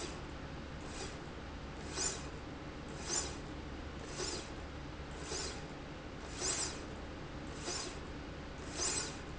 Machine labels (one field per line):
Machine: slide rail